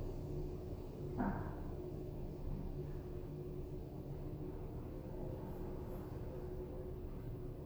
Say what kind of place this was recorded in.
elevator